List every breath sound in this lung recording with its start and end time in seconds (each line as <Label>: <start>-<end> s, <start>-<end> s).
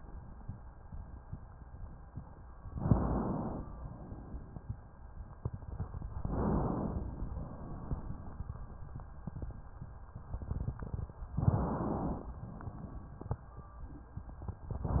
Inhalation: 2.73-3.66 s, 6.11-7.27 s, 11.32-12.31 s, 14.78-15.00 s
Exhalation: 3.66-4.70 s, 7.27-8.79 s, 12.31-13.43 s